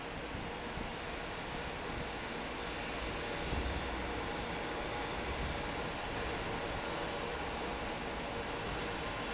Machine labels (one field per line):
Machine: fan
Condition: normal